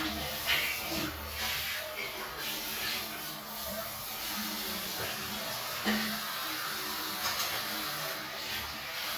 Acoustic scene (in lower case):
restroom